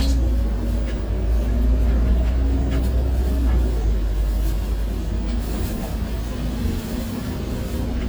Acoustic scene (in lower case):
bus